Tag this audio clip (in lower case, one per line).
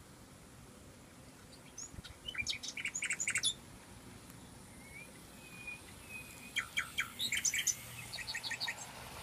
bird vocalization
bird
chirp